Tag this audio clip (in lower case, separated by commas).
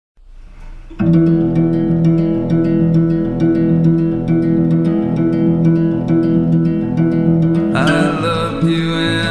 music